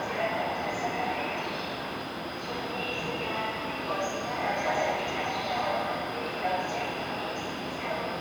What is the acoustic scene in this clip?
subway station